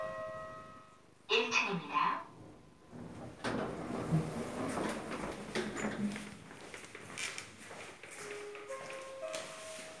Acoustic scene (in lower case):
elevator